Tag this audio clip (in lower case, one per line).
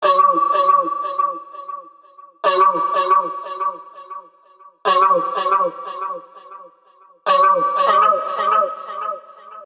human voice